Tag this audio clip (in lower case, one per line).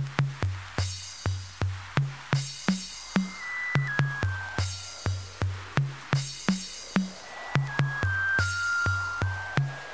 techno
electronic music
music